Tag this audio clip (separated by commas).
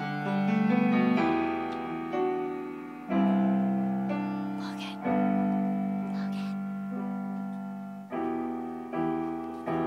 Speech, Music